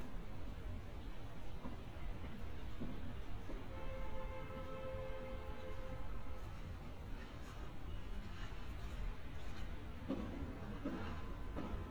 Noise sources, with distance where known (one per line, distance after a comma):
car horn, near